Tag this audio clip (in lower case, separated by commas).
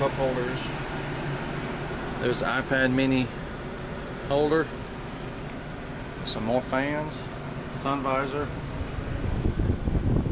outside, urban or man-made, speech